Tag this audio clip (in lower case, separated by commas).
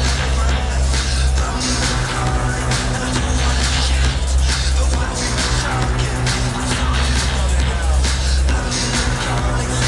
techno, music, electronic music